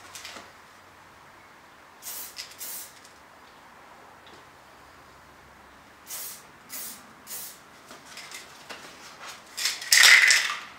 A clanging sound and then a spraying sound